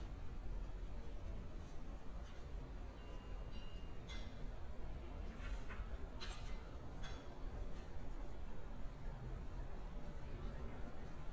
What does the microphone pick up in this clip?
non-machinery impact